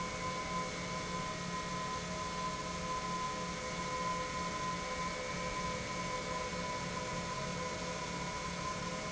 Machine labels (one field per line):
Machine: pump